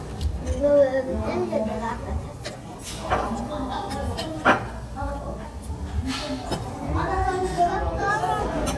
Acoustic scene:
restaurant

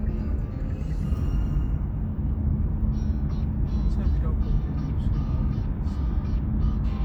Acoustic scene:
car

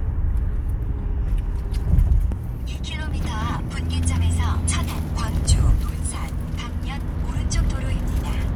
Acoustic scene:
car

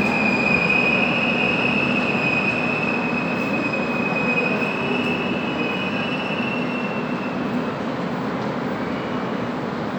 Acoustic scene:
subway station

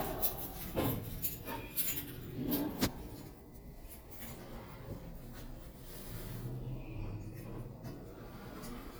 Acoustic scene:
elevator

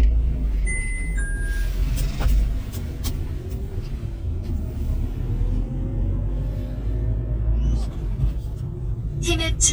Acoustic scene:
car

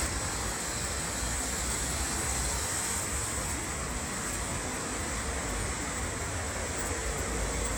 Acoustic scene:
street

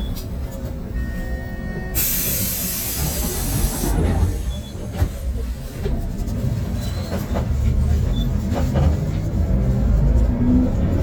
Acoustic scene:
bus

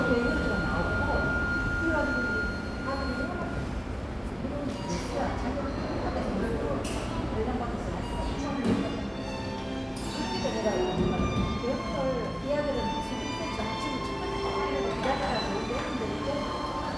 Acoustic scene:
cafe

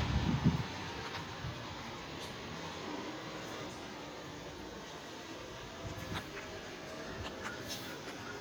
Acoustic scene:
residential area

